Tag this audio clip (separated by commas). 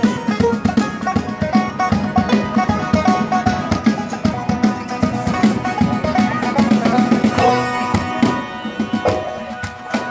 Speech, Bluegrass, Music